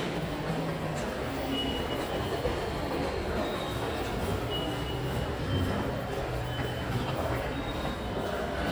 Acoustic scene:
subway station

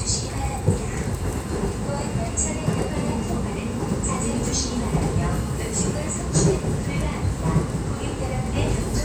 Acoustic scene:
subway train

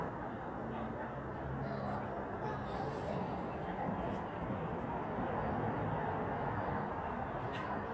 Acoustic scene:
residential area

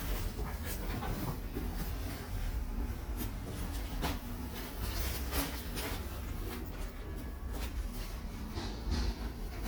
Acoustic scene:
elevator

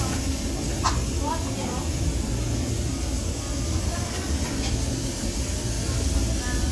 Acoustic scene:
crowded indoor space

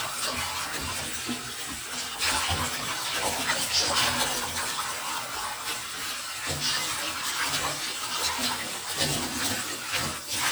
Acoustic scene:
kitchen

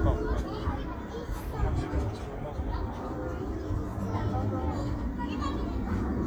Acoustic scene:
park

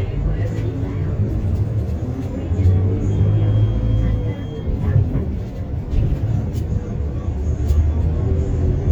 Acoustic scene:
bus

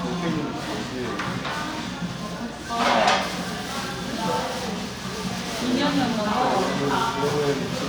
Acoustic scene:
cafe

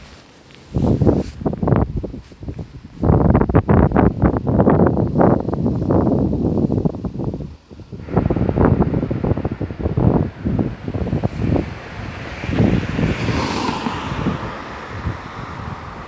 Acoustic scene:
street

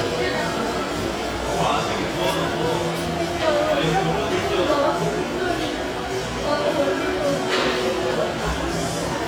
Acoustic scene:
cafe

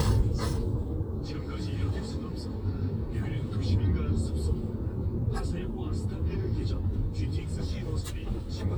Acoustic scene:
car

